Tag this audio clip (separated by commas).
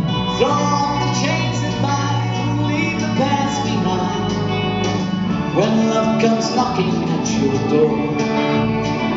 Music